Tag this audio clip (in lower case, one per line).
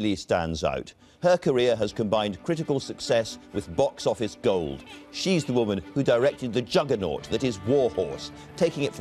music
speech